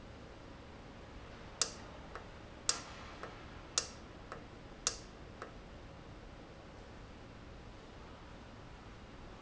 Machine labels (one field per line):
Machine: valve